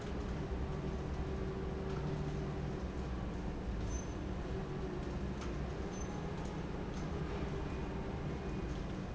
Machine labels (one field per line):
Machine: fan